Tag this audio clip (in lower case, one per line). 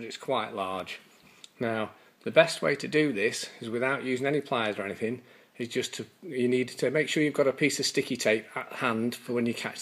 speech